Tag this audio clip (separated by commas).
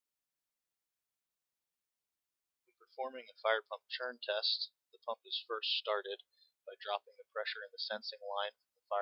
Speech